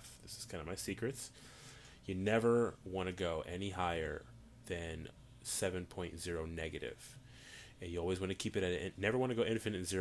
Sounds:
speech

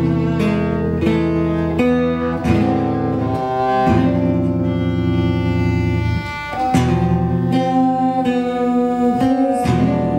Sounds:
music

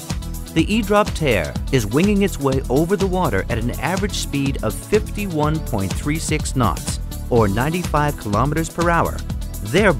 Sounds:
music, speech

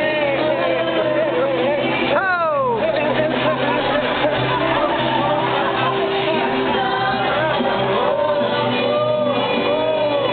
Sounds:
speech, music

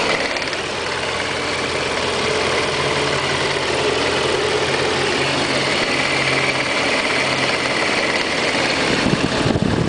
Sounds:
car engine knocking, engine knocking, accelerating

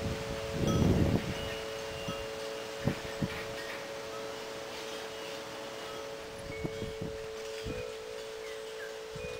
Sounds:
music, wind

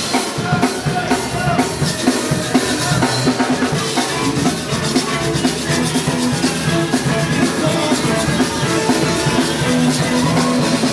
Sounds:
music

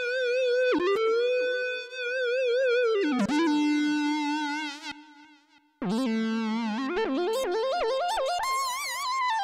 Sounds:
music

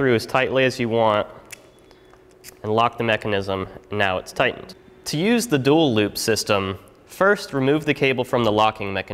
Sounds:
speech

